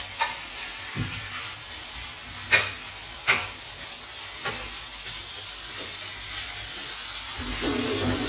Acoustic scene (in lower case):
kitchen